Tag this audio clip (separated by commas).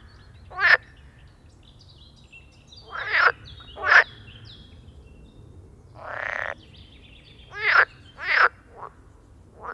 frog croaking